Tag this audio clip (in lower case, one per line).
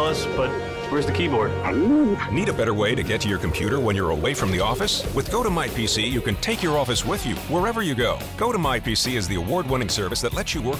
speech
music